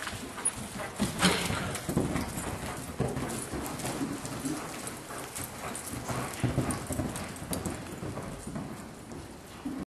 Large animal walking across floor panting